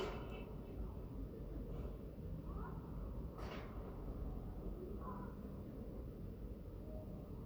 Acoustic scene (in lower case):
residential area